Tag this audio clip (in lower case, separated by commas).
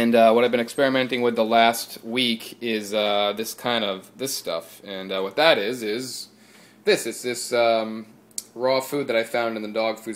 speech